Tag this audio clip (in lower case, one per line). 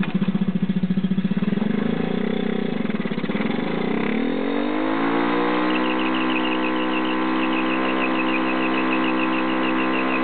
motorcycle
vehicle